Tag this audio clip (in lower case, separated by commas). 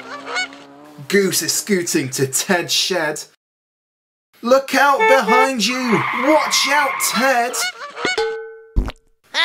speech, honk